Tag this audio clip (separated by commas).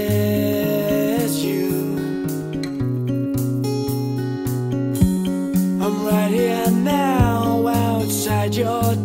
Music